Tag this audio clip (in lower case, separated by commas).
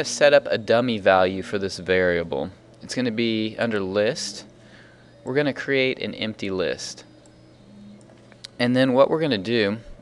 speech